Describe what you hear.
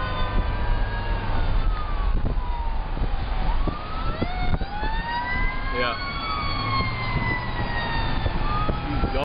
Emergency vehicle or truck and man saying yep